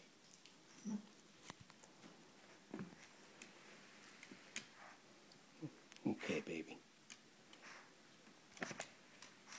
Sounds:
speech

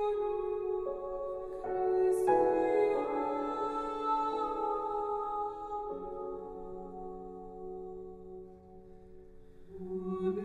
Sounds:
music

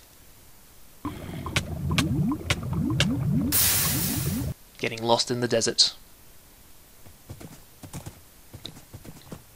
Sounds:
roar, speech

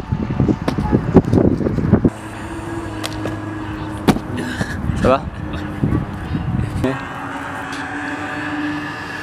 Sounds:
outside, urban or man-made, speech

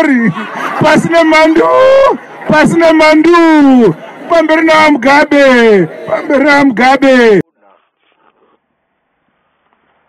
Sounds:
male speech, narration, speech

